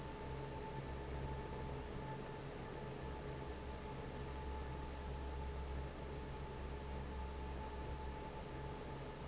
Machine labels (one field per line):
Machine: fan